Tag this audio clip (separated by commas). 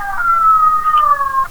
Domestic animals, Dog, Animal